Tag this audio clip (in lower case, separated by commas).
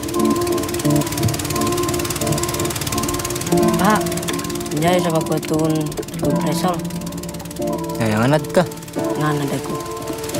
music, speech, gurgling